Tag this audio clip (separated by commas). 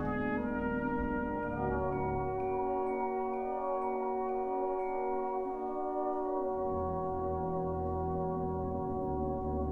Orchestra, Brass instrument, Music, Trumpet, Trombone, Classical music